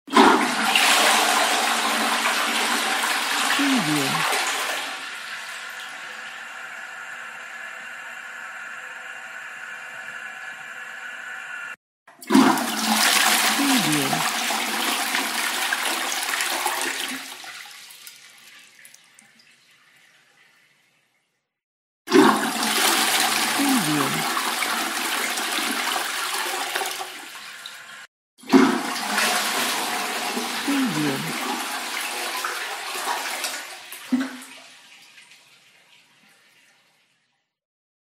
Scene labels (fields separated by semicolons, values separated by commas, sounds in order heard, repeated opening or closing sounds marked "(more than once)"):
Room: lavatory; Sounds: toilet flushing